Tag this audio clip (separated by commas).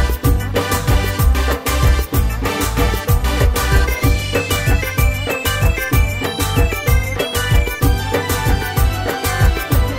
Music